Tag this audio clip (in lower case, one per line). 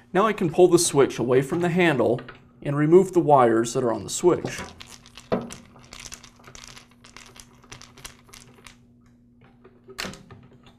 speech